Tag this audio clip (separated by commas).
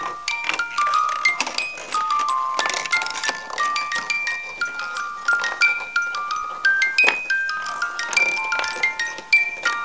Music